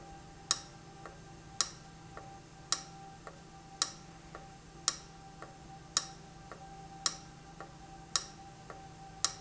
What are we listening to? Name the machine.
valve